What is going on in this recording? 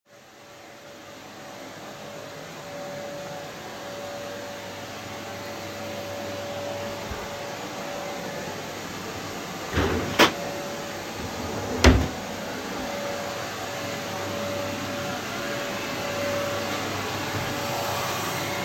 I walked to a drawer while the vacuum cleaner was on and opened it. Somebody turned on the tap